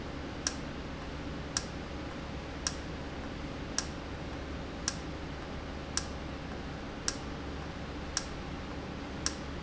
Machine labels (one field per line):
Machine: valve